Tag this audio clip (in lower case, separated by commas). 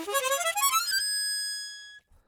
music, harmonica, musical instrument